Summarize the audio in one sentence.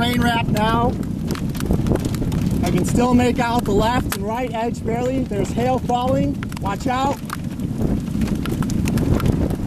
Rain and hail hit a window while a person speaks